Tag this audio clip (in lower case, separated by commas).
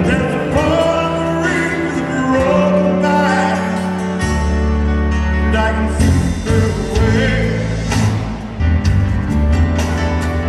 music